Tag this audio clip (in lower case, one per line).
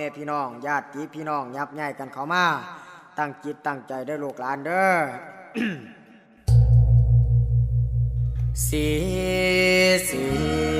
speech
music